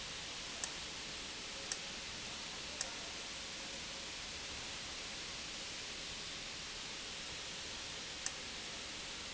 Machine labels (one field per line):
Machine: valve